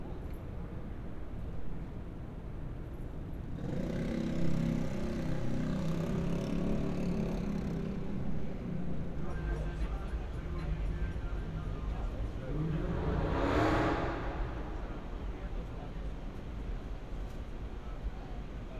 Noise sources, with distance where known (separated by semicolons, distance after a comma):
medium-sounding engine, near